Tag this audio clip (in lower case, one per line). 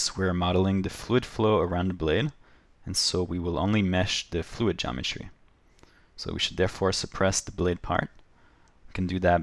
speech